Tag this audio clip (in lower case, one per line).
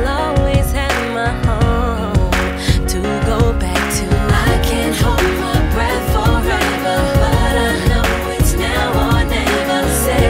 music